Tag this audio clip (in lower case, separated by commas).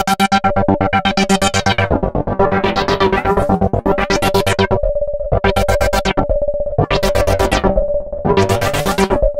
musical instrument, keyboard (musical), piano, music, synthesizer